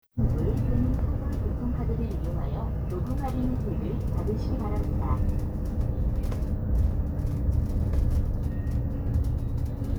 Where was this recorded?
on a bus